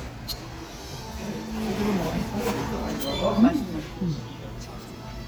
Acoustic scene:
restaurant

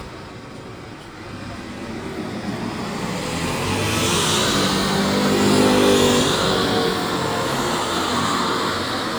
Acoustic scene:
street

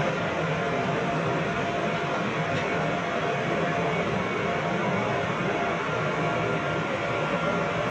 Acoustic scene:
subway train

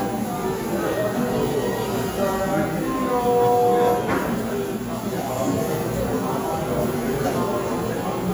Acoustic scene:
cafe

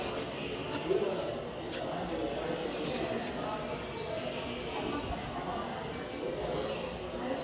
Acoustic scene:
subway station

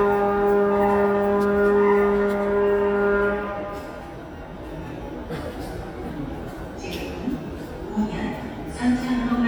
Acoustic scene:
subway station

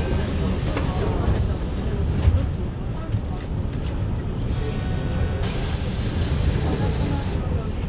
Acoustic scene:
bus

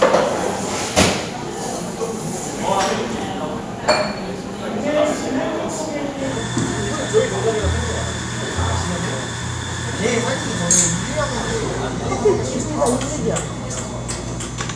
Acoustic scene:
cafe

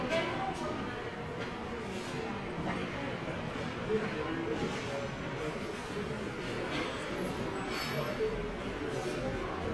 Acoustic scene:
subway station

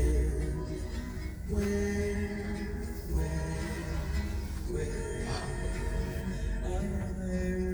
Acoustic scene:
car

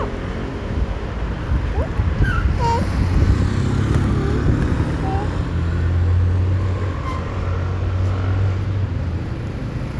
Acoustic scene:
street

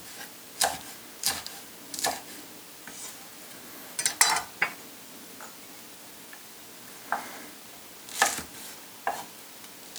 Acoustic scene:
kitchen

